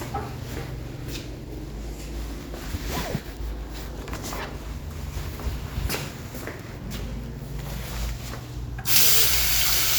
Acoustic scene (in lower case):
restroom